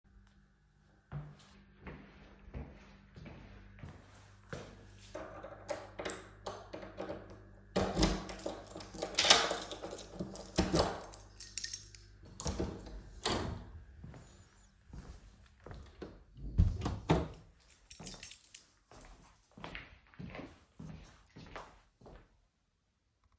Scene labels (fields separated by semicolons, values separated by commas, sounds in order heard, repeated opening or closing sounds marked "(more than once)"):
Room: bedroom; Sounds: footsteps, door (more than once), keys